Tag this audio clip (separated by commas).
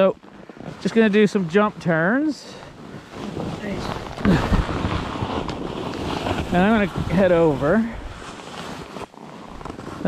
skiing